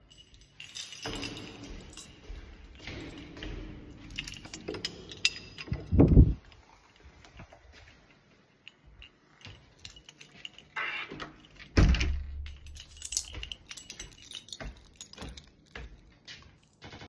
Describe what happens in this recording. I arrived home and walked through the hallway while holding my keys. The keychain jingled as I approached the door. I then opened and closed the door and continued walking.